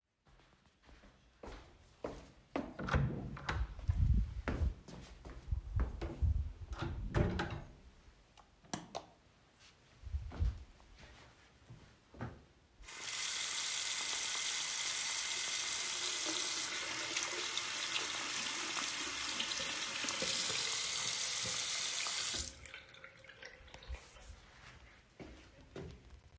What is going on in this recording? I opened the door and walked into the bathroom. Then I closed the door and turn on the lights. I walked to the sink and turned on the water.